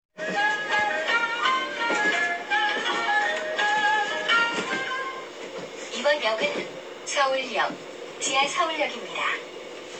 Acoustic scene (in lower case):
subway train